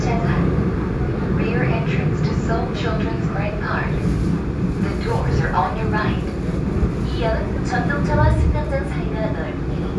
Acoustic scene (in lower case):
subway train